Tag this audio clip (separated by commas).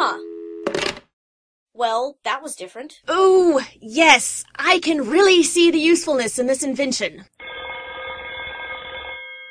Telephone bell ringing, Speech